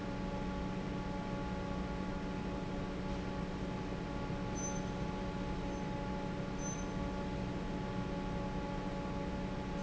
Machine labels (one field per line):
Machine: fan